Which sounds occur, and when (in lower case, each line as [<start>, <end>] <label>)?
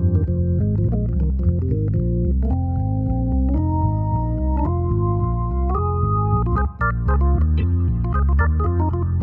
[0.00, 9.22] music
[0.09, 0.28] clicking
[0.54, 0.92] clicking
[1.06, 1.73] clicking
[1.88, 1.98] clicking
[2.22, 2.31] clicking
[2.41, 2.51] clicking
[2.69, 2.79] clicking
[3.02, 3.10] clicking
[3.29, 3.35] clicking
[3.48, 3.61] clicking
[4.30, 4.38] clicking
[4.58, 4.70] clicking
[4.87, 4.94] clicking
[5.16, 5.25] clicking
[5.45, 5.52] clicking
[5.63, 5.74] clicking
[6.35, 6.67] clicking
[7.04, 7.20] clicking
[7.33, 7.43] clicking
[8.03, 8.43] clicking
[8.56, 9.03] clicking
[9.16, 9.22] clicking